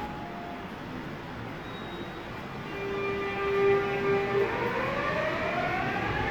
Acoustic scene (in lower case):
subway station